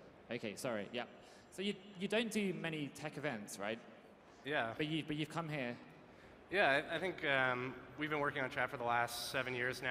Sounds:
Speech

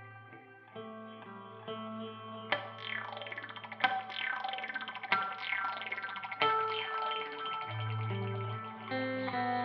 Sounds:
Guitar, Electric guitar, Plucked string instrument, Music, Effects unit, Musical instrument

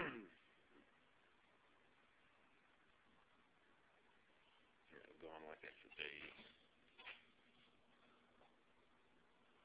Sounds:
Speech

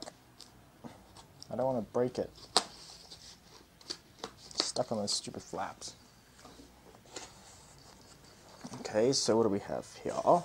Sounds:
Speech, inside a small room

